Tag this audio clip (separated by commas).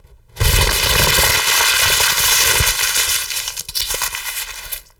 Crumpling